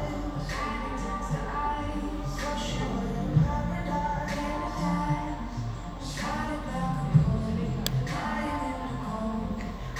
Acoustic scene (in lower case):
cafe